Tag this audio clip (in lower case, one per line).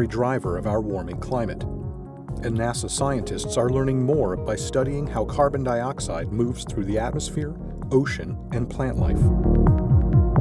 speech
music